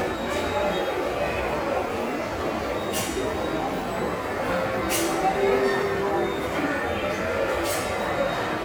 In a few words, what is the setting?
subway station